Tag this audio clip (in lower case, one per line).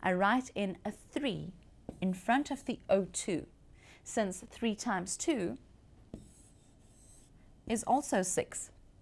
inside a large room or hall
writing
speech